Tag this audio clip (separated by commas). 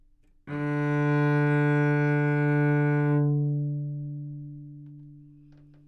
Musical instrument, Music, Bowed string instrument